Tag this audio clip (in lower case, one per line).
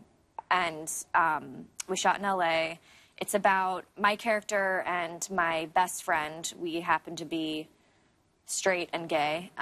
speech
female speech